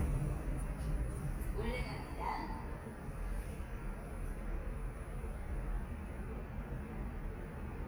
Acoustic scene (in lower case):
elevator